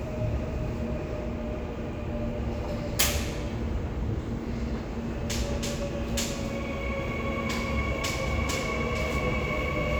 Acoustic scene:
subway station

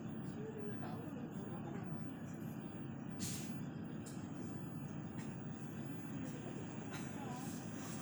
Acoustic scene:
bus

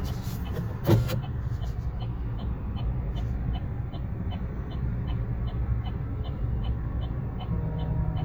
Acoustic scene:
car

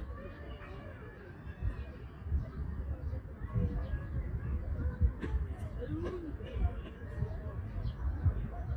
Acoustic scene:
park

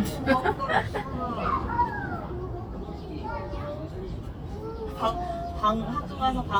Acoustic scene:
park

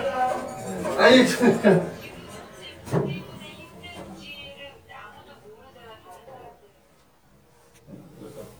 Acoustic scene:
elevator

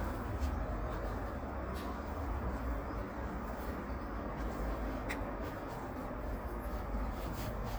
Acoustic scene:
residential area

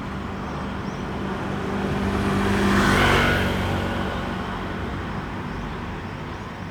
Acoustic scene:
street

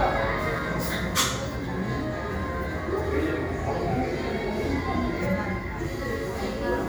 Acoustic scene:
cafe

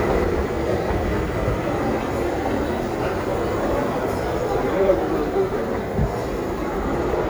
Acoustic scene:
crowded indoor space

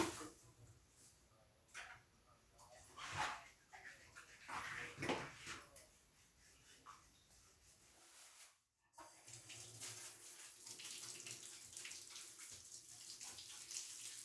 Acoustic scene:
restroom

